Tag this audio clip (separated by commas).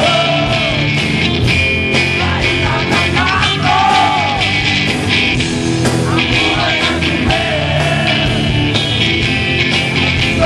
Music